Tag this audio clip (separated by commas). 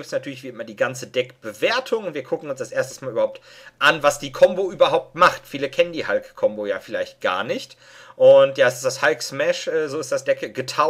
Speech